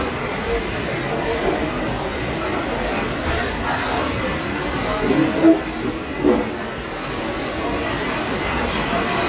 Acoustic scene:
restaurant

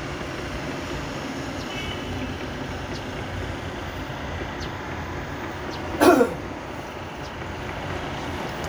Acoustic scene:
street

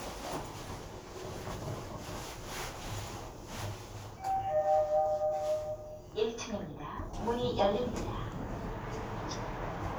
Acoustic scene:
elevator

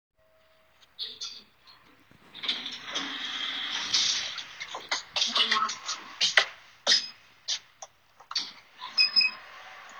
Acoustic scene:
elevator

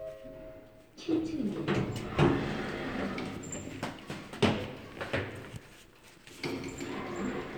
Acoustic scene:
elevator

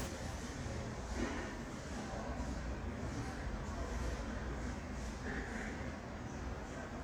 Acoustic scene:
elevator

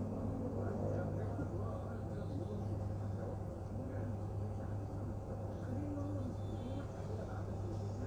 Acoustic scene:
bus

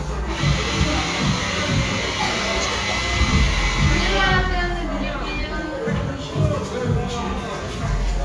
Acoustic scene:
cafe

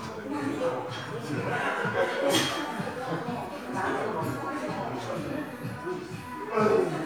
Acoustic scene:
crowded indoor space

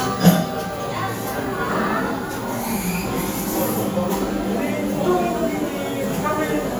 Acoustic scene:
cafe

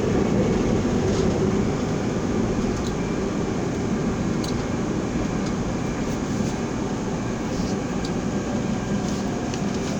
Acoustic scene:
subway train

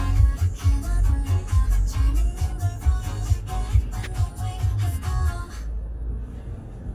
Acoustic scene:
car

